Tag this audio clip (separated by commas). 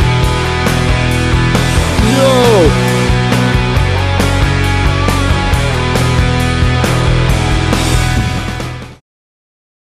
Music, Speech